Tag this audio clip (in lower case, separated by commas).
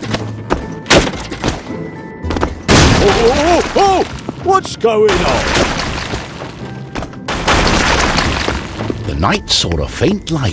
speech, music